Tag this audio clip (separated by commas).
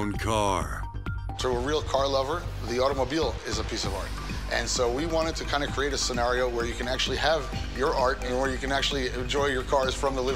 Music, Speech